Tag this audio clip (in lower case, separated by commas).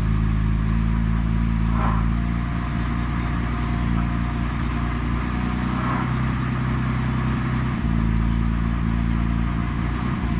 heavy engine (low frequency), idling, car, vehicle